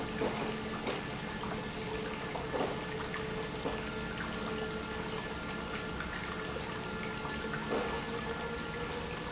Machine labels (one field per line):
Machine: pump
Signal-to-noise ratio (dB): -6 dB